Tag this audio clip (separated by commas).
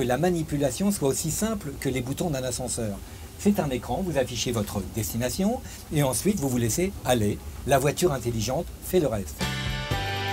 Speech, Vehicle, Music